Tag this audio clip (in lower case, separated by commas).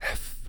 whispering, human voice